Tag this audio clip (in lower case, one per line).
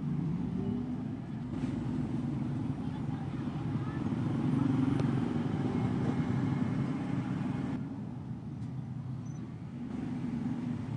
outside, urban or man-made
speech